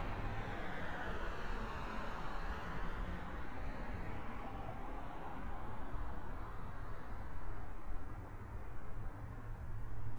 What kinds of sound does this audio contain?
background noise